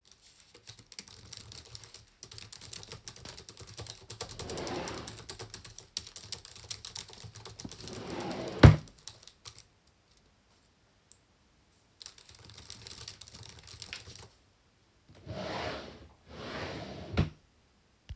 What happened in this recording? I typed on my laptop keyboard while opening and closing a drawer. Then after a pause, I typed again, and stopped. Then I opened and closed another drawer. (has polyphony)